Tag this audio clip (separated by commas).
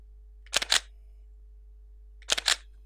Mechanisms, Camera